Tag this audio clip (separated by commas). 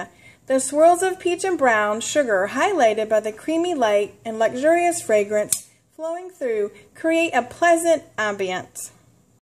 Speech